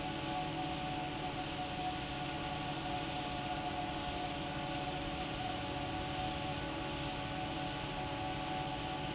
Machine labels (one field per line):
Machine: fan